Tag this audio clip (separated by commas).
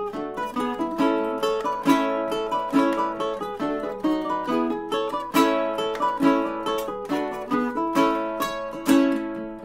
Ukulele, Mandolin, Plucked string instrument, Guitar, Musical instrument, Music